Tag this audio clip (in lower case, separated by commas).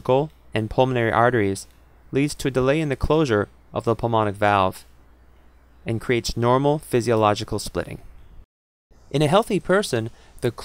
speech